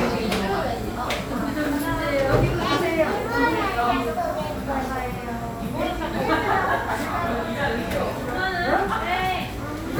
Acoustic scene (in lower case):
cafe